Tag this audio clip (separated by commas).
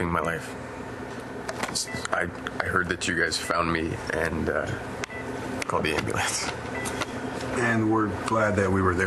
Speech